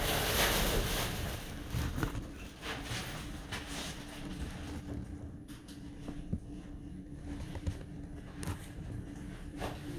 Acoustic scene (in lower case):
elevator